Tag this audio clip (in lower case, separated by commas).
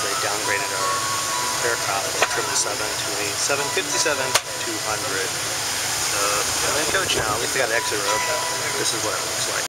music, speech